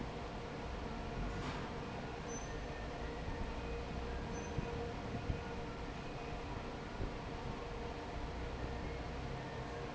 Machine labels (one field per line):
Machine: fan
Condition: normal